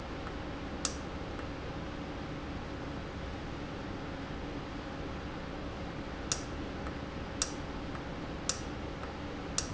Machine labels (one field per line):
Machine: valve